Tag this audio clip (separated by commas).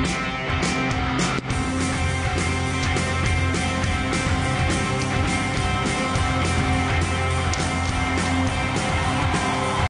Music